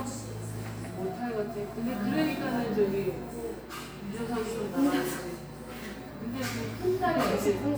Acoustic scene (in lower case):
cafe